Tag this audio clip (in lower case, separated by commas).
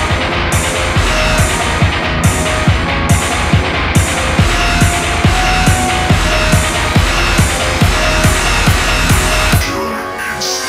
hum